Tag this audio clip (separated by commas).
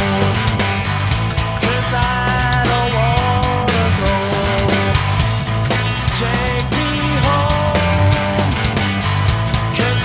Heavy metal, Music